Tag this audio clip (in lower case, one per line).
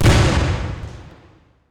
explosion
boom